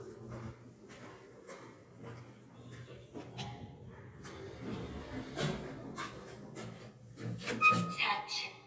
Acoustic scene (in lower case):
elevator